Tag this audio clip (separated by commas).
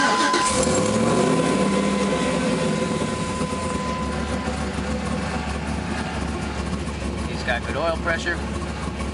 Speech